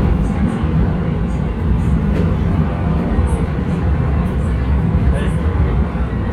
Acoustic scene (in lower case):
subway train